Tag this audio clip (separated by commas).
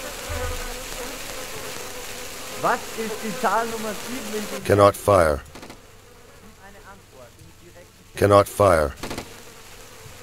outside, rural or natural, Speech